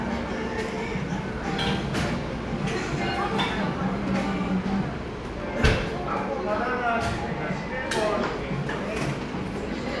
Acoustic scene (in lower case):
cafe